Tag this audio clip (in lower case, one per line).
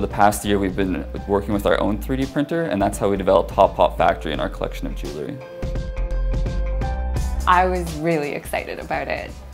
speech
music